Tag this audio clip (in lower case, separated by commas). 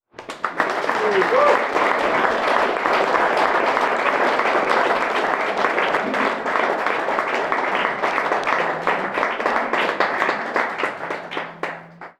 applause, human group actions